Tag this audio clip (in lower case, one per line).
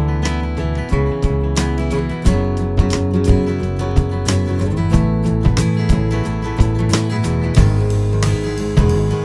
music